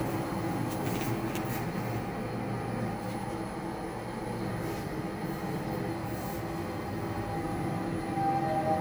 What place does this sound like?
elevator